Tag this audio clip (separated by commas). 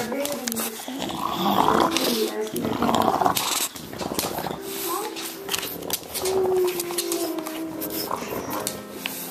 Animal, Speech, Music